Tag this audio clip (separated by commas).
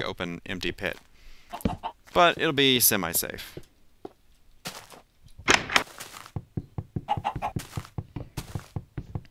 Speech